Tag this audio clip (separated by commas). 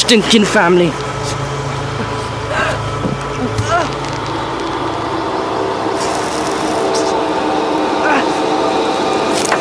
Speech